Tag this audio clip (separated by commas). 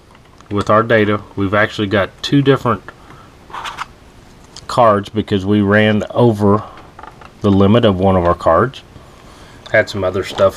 Speech, inside a small room